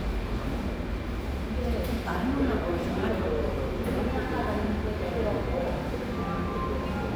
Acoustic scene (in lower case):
cafe